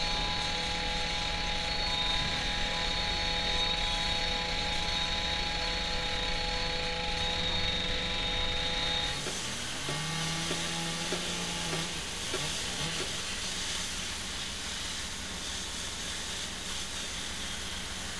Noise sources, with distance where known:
rock drill

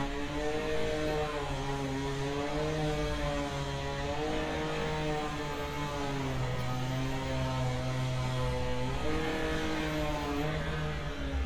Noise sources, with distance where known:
unidentified powered saw, near

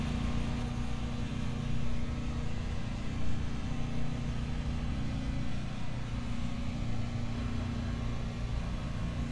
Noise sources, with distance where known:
engine of unclear size, near

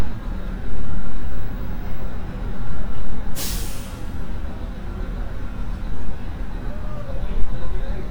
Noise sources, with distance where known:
large-sounding engine

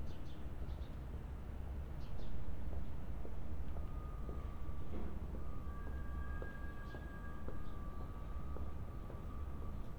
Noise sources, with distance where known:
background noise

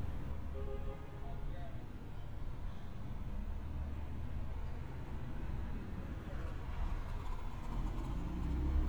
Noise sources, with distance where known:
medium-sounding engine
car horn, far
person or small group talking

